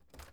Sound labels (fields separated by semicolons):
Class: window; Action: opening